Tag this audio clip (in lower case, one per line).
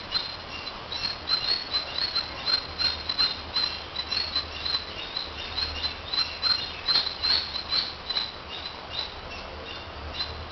bird
rustling leaves